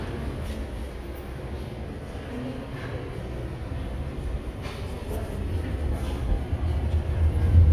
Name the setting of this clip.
subway station